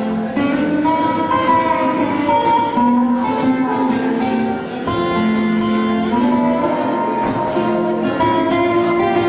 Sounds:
Wedding music, Music

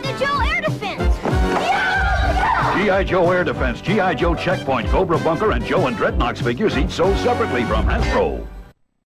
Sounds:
Speech, Music

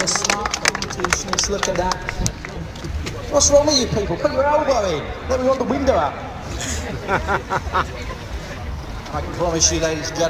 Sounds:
Speech, speech noise

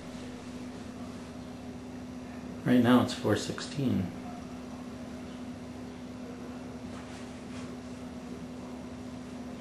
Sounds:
Speech

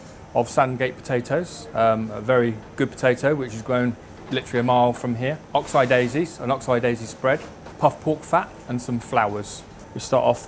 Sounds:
Speech

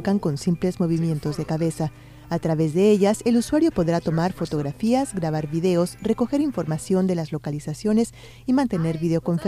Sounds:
Music, Speech

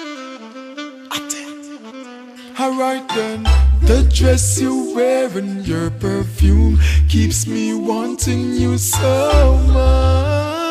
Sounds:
Music, Reggae

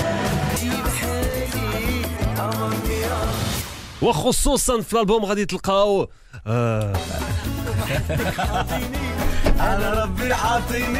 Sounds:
Radio, Music, Speech

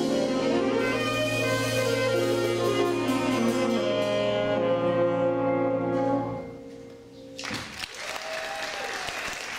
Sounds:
inside a public space, Orchestra, Music

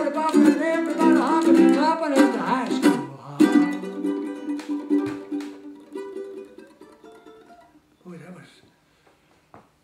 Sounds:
Musical instrument, Ukulele, Plucked string instrument, Speech, Country, Music

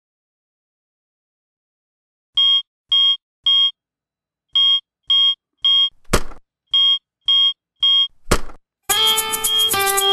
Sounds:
Musical instrument, Music

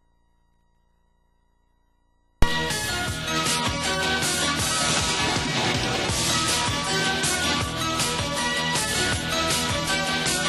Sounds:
Music

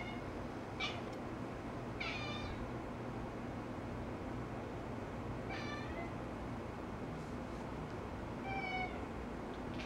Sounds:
Animal, Meow, Domestic animals, Cat

